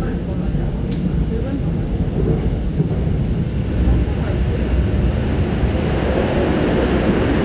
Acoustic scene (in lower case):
subway train